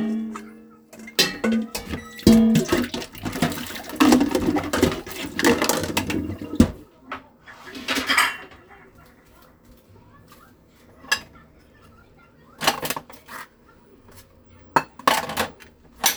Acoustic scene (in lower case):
kitchen